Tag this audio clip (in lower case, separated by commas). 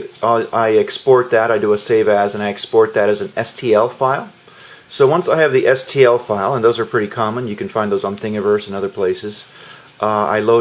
speech